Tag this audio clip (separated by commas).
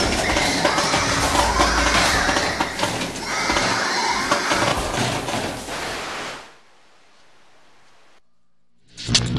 Music